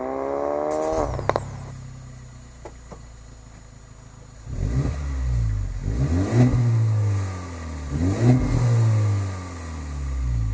An engine is revved